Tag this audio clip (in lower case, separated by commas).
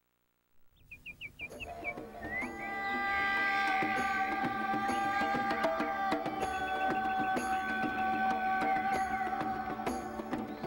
music